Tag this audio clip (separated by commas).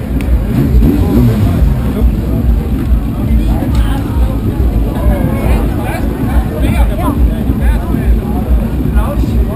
Sound effect, outside, urban or man-made, Speech